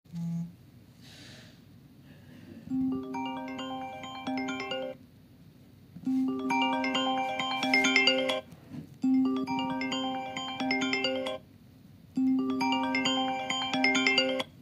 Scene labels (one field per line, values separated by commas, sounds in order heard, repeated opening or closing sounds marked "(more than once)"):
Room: bedroom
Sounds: phone ringing